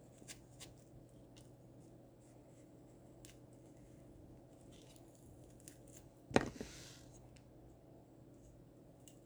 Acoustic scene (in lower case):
kitchen